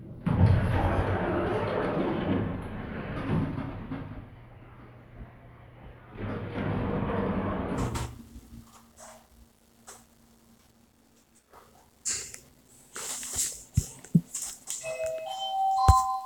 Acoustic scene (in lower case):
elevator